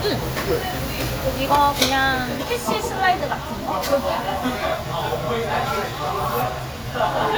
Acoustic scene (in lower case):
restaurant